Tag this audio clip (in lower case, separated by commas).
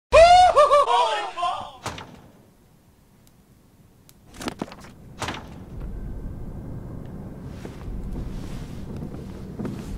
speech